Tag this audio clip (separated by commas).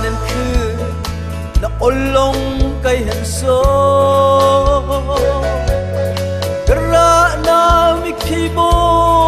Music